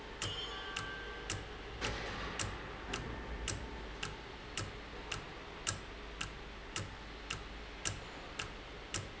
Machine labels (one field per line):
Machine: valve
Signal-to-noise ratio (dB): 0 dB